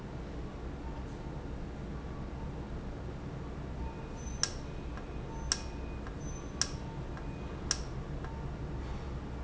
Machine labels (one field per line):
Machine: valve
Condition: normal